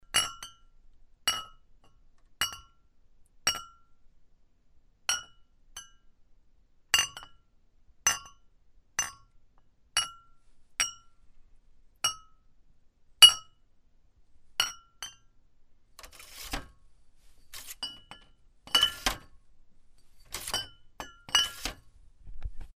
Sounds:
glass

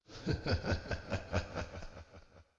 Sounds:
human voice, laughter

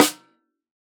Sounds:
musical instrument, drum, snare drum, music, percussion

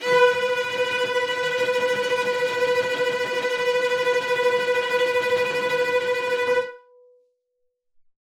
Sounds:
bowed string instrument, music, musical instrument

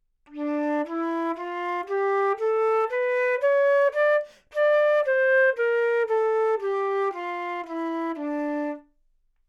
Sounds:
musical instrument, music, woodwind instrument

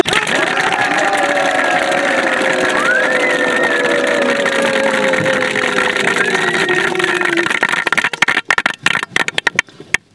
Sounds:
human group actions, applause, cheering

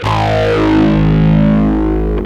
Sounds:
guitar, bass guitar, musical instrument, music, plucked string instrument

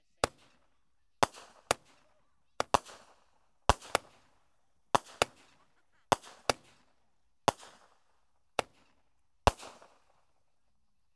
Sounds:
fireworks, explosion

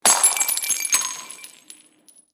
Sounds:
shatter, glass

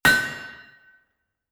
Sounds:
tools, hammer

